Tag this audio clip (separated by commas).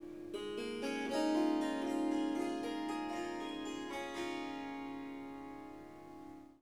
Music, Harp, Musical instrument